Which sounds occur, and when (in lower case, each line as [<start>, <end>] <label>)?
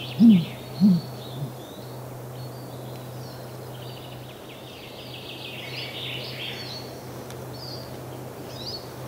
[0.00, 2.04] bird call
[0.00, 9.05] motor vehicle (road)
[0.00, 9.05] wind
[0.16, 0.42] hoot
[0.71, 1.01] hoot
[1.25, 1.52] hoot
[2.30, 3.01] bird call
[2.89, 3.00] tick
[3.12, 6.91] bird call
[7.25, 7.36] tick
[7.50, 7.87] bird call
[7.82, 7.92] tick
[8.45, 8.80] bird call